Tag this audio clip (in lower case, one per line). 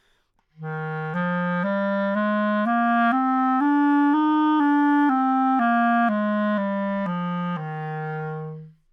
musical instrument
music
wind instrument